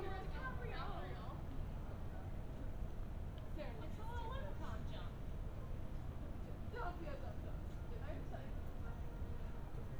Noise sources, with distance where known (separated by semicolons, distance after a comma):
person or small group talking, near